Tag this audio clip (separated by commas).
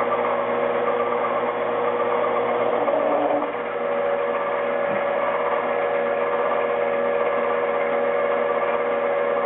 Power tool